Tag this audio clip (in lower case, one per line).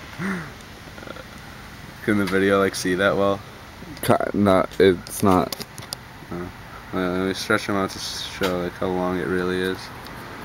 speech